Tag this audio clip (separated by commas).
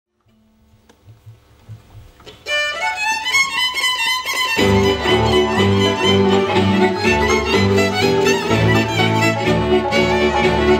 Musical instrument, Bowed string instrument, Music, Violin, Classical music, fiddle